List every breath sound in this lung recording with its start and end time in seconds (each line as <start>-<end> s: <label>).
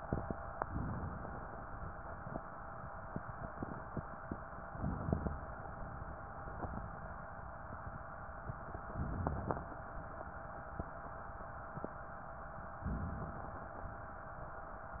4.61-5.65 s: inhalation
8.74-9.77 s: inhalation
12.78-13.93 s: inhalation